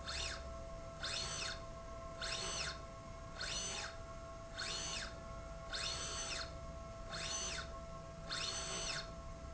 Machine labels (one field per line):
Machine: slide rail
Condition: normal